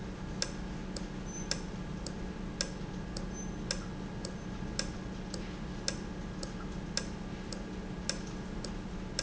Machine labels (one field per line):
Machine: valve